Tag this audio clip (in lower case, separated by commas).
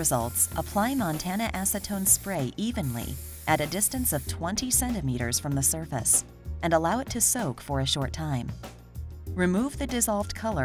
spray, speech, music